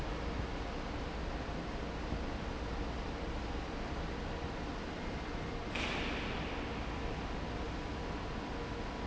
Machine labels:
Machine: fan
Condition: normal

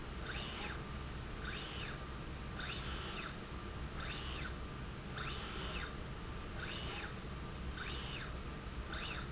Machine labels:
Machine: slide rail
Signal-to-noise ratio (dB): 0 dB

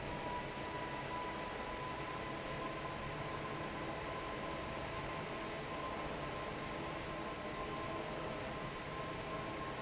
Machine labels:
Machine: fan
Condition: normal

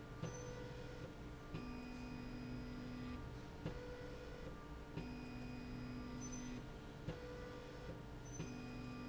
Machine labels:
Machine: slide rail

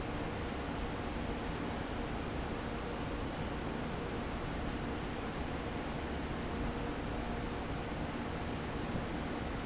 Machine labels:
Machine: fan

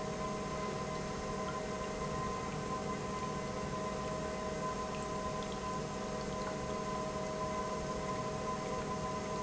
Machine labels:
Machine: pump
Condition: normal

